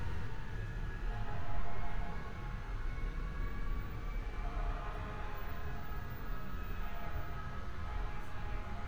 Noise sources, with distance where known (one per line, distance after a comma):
siren, far